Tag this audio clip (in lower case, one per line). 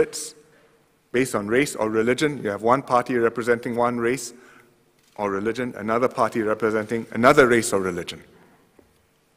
male speech
speech
monologue